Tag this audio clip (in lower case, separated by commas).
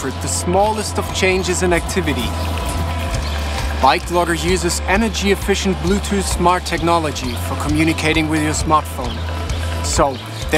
speech, vehicle, music, bicycle